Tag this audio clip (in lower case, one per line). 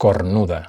man speaking
human voice
speech